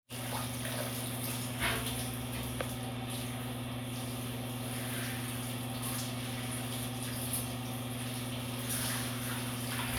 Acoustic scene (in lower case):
restroom